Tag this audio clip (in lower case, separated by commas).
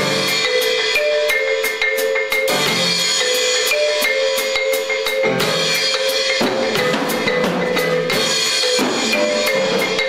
xylophone, drum, musical instrument, music, percussion